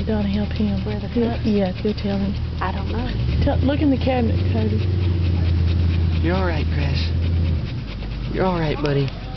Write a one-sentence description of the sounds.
People speaking, dog panting